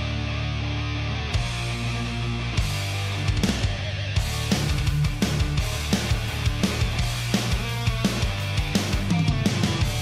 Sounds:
Music

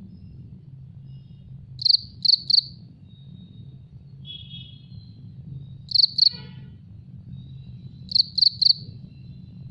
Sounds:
cricket chirping

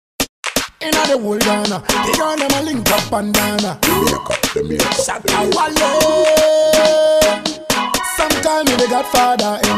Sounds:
Afrobeat, Hip hop music, Music

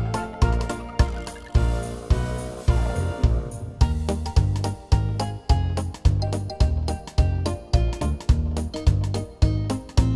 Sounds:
Music

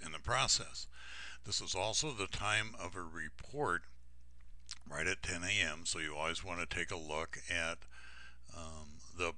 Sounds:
Speech

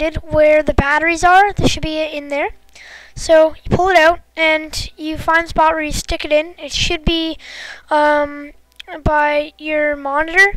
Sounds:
Speech

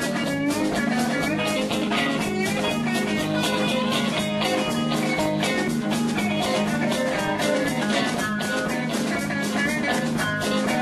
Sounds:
Music

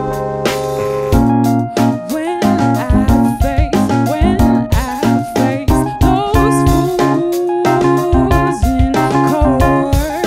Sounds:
Music, Singing

